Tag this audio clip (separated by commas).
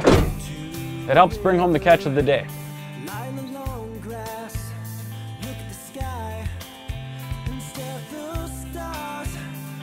Music, Speech